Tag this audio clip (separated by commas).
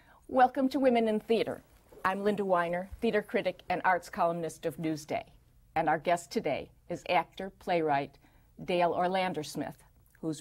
woman speaking, Speech